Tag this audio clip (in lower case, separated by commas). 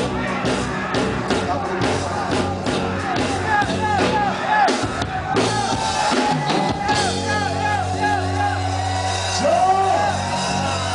music, speech